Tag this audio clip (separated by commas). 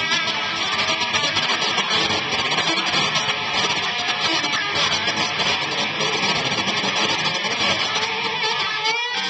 Music, Electric guitar, Musical instrument, Guitar